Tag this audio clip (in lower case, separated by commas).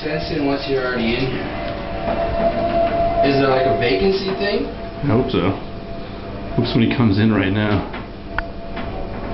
speech